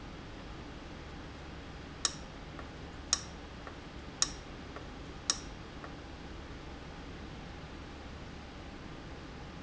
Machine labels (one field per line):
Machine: valve